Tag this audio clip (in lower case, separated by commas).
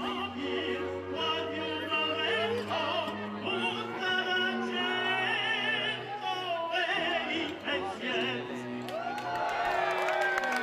speech, male singing